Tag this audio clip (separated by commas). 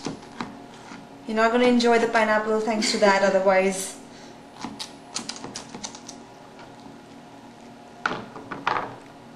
Speech, inside a small room